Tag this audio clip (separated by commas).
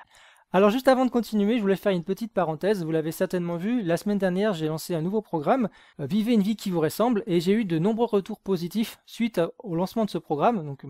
Speech